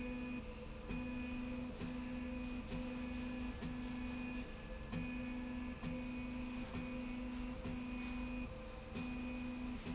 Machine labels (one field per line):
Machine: slide rail